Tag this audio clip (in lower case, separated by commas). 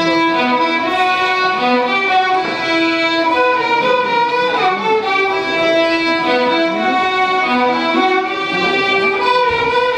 music, fiddle, musical instrument